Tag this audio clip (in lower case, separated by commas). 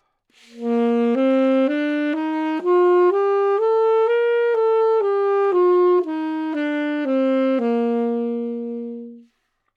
music, wind instrument, musical instrument